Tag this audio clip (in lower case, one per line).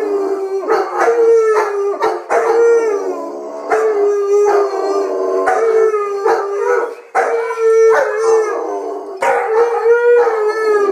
dog howling